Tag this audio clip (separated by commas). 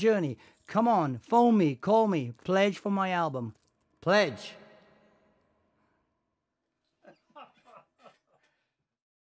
Speech